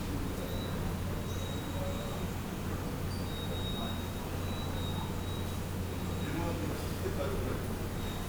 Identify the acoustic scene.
subway station